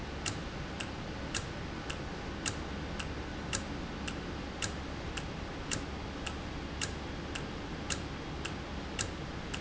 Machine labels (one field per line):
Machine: valve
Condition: normal